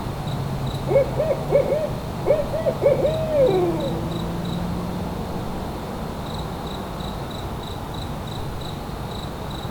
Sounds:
Insect, Bird, Wild animals, Animal, Cricket

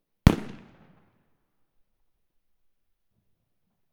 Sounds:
Fireworks, Explosion

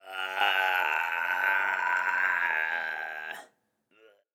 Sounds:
Human voice

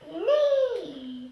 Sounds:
Human voice, Speech

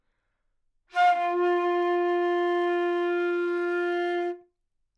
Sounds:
woodwind instrument, Music, Musical instrument

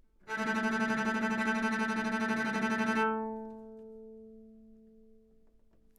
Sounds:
Music, Bowed string instrument, Musical instrument

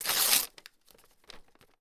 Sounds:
Tearing

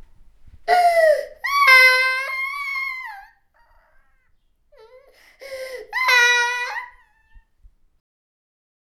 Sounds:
sobbing, Human voice

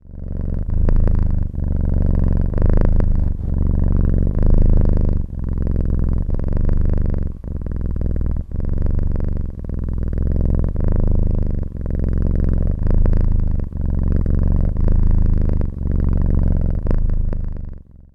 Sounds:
Purr, pets, Animal, Cat

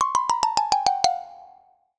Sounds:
Musical instrument, Music, Mallet percussion, xylophone, Percussion

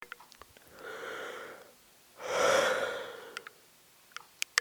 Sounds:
Human voice, Respiratory sounds, Breathing

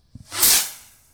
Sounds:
Explosion, Fireworks

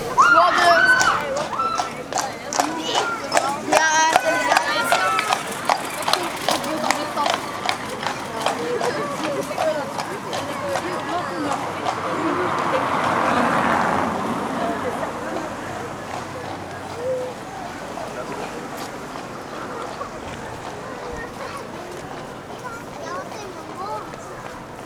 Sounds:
livestock, Animal

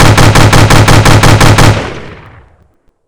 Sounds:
Explosion, gunfire

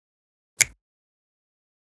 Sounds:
Hands, Finger snapping

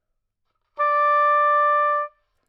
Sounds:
Music, Musical instrument, Wind instrument

